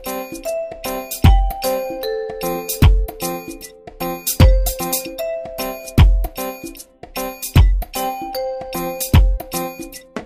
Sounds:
Music

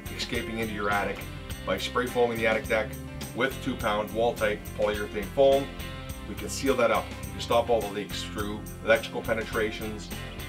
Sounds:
Music, Speech

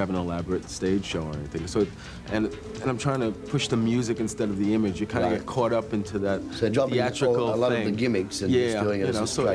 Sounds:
Music, Speech

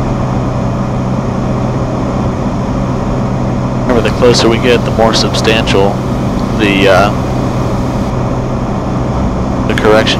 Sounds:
Aircraft, Vehicle, Speech

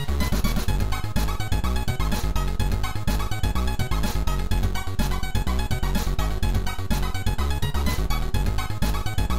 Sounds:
Music, Soundtrack music

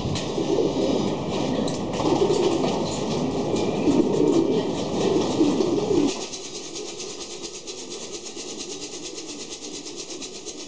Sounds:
Bird, Coo

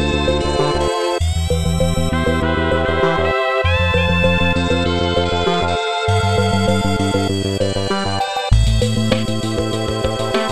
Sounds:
Video game music, Music

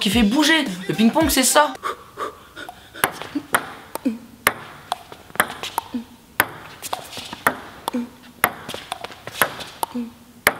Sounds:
playing table tennis

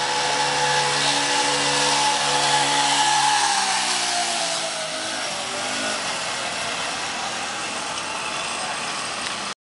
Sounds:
Mechanisms, Ratchet

